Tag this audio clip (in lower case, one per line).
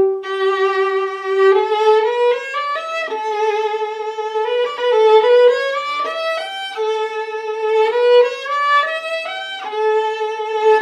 music
musical instrument
violin